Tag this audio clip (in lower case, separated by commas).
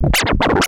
musical instrument, scratching (performance technique), music